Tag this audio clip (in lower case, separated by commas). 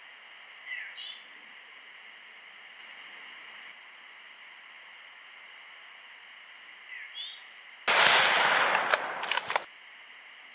coyote howling